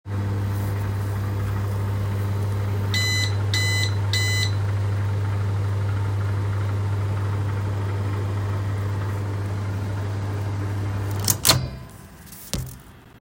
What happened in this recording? I placed a small dish into the microwave, started a short cycle, and moved the dish afterward. The device remained still, capturing the door latch, fan hum, and a brief timer beep.